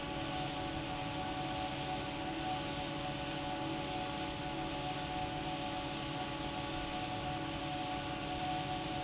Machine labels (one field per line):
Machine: fan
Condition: normal